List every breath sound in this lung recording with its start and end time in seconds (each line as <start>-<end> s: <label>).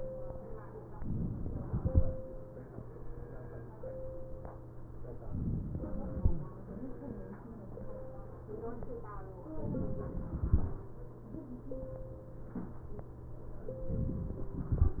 0.99-1.80 s: inhalation
1.80-2.99 s: exhalation
5.30-6.27 s: inhalation
9.63-10.39 s: inhalation
10.39-11.55 s: exhalation
13.98-15.00 s: inhalation